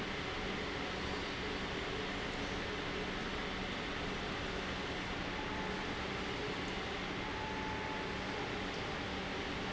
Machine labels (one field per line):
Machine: pump